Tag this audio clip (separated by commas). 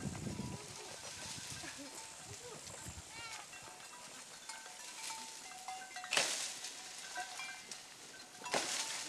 Goat, Animal, Speech